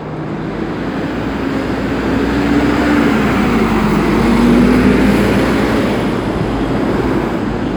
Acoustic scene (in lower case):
street